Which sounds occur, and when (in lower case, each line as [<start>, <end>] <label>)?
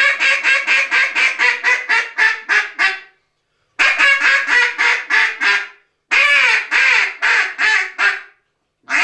[0.00, 3.26] duck call (hunting tool)
[3.43, 3.78] breathing
[3.79, 5.89] duck call (hunting tool)
[6.11, 8.46] duck call (hunting tool)